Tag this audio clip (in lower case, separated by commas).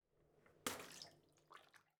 bathtub (filling or washing), splatter, water, domestic sounds, liquid